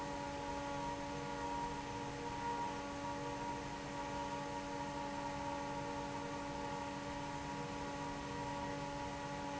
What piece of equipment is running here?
fan